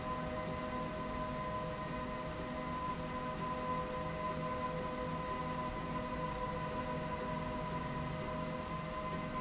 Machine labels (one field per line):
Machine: slide rail